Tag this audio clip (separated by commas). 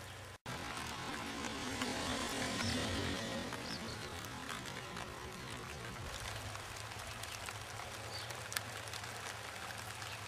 Animal